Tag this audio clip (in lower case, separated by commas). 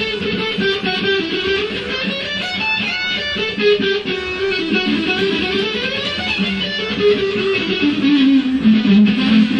guitar, acoustic guitar, electric guitar, musical instrument, plucked string instrument, music